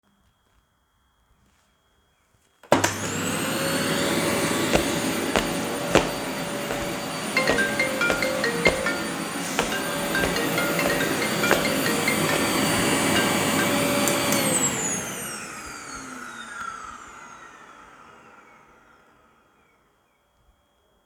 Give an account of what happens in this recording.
I vacuumed the living room floor while walking around. A phone notification started ringing while I was still vacuuming. The vacuum footsteps and phone overlapped for several seconds.